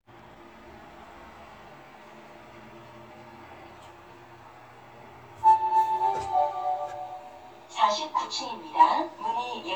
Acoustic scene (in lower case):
elevator